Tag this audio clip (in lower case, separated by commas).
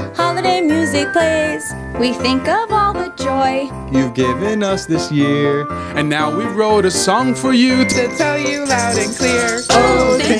christmas music, christian music, music